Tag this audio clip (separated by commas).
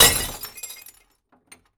Glass